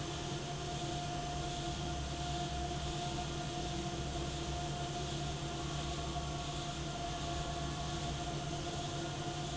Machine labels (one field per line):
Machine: fan